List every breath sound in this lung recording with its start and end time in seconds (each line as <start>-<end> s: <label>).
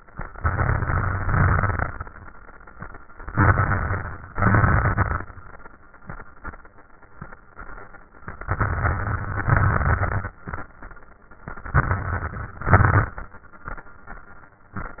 0.36-1.86 s: inhalation
0.36-1.86 s: crackles
3.32-4.32 s: inhalation
3.32-4.32 s: crackles
4.33-5.26 s: exhalation
4.33-5.26 s: crackles
8.26-9.47 s: inhalation
8.26-9.47 s: crackles
9.52-10.33 s: exhalation
9.52-10.33 s: crackles
11.54-12.63 s: inhalation
11.54-12.63 s: crackles
12.70-13.18 s: exhalation
12.70-13.18 s: crackles